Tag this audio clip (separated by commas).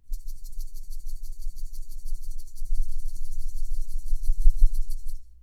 Rattle (instrument), Musical instrument, Music, Percussion